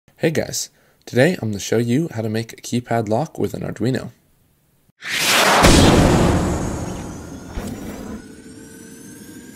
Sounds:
speech, music

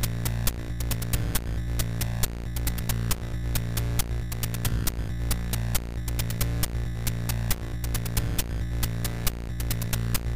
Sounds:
music

